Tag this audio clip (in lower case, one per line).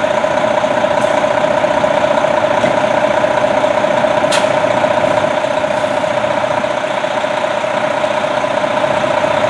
engine
idling
vehicle
medium engine (mid frequency)
truck